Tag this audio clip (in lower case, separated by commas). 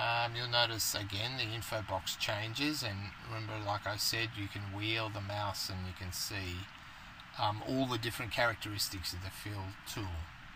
speech